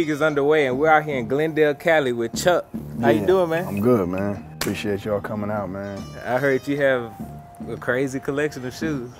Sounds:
music
speech

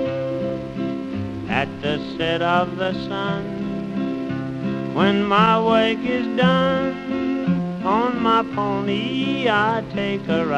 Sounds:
music

